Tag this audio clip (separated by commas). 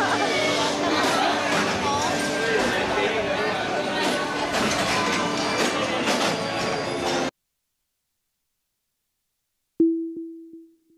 Speech, Music, inside a public space